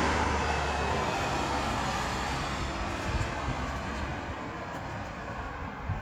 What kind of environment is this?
street